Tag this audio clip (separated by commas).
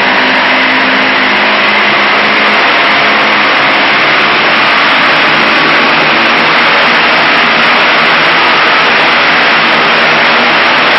Engine